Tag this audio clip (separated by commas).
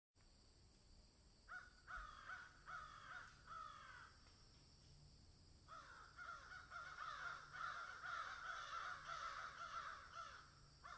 crow cawing